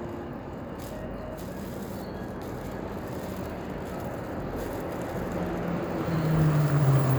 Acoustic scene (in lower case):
street